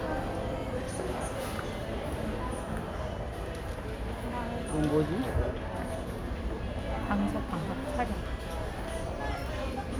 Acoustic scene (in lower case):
crowded indoor space